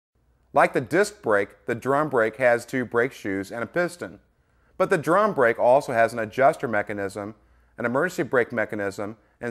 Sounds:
Speech

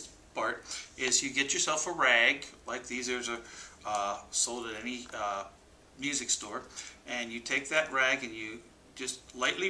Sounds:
Speech

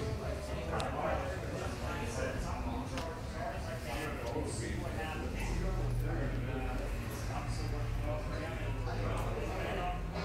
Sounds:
Speech

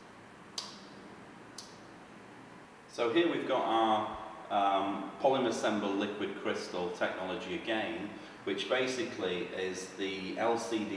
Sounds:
Speech

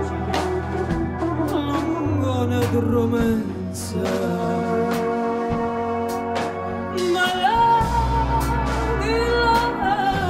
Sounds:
Music

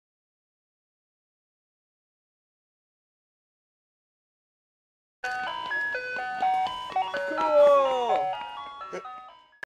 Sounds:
Music

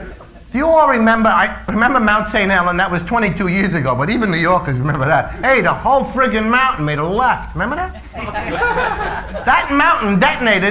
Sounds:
Speech

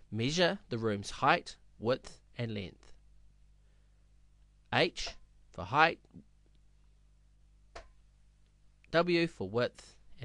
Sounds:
Speech

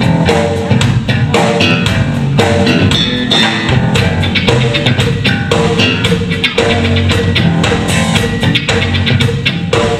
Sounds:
Music

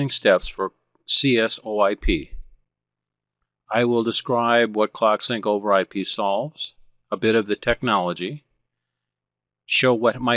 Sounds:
Speech

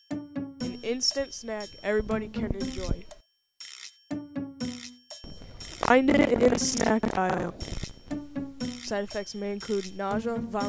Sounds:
Speech

